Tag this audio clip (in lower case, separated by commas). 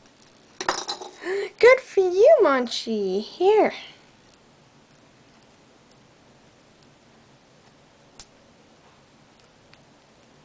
speech